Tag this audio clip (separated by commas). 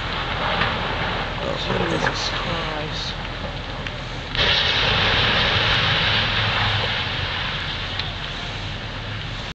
Speech